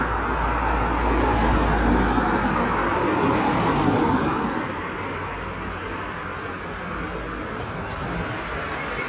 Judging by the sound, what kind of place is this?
street